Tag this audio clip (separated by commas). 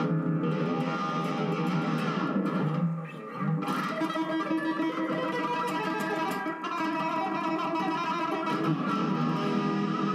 Bass guitar, Music, Plucked string instrument, Musical instrument